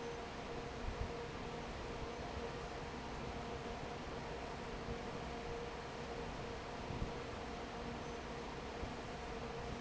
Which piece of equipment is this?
fan